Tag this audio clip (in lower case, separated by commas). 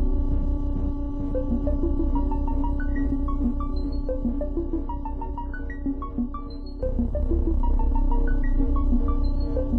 scary music, music